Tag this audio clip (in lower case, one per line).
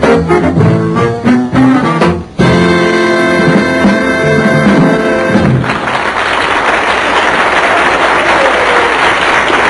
music